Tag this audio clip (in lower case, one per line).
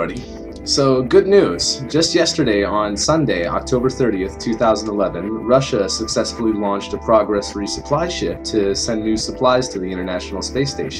narration
music
speech